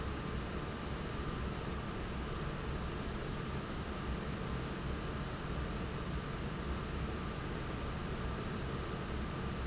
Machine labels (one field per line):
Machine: fan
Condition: normal